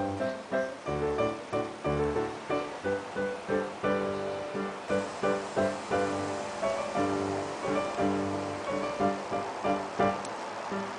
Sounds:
music

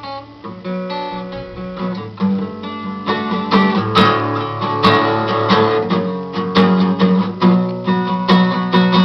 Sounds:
plucked string instrument, musical instrument, acoustic guitar, music, strum, guitar

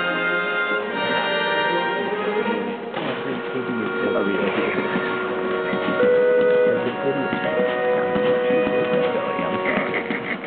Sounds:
speech, music

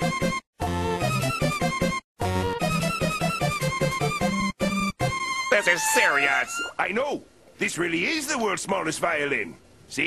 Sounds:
music, musical instrument

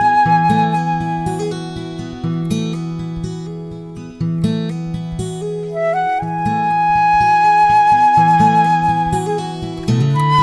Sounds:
music

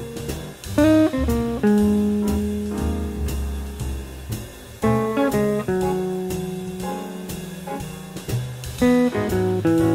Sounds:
jazz, musical instrument, music, guitar, plucked string instrument, acoustic guitar, strum

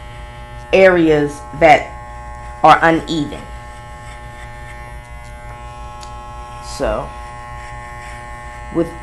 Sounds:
inside a small room, electric shaver, speech

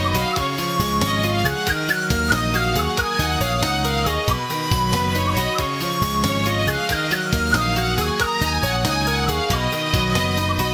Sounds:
music

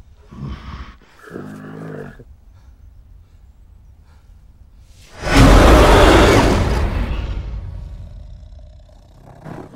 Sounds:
roar

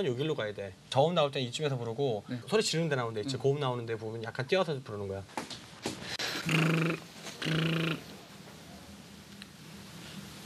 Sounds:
speech, inside a small room

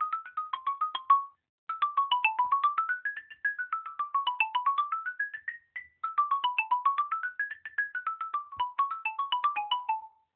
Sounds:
xylophone, music, musical instrument

